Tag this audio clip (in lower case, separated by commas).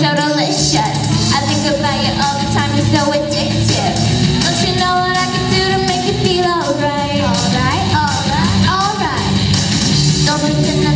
music